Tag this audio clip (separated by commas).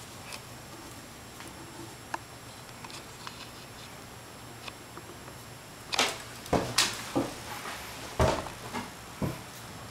ferret dooking